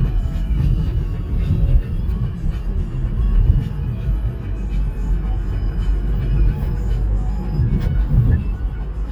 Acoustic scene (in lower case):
car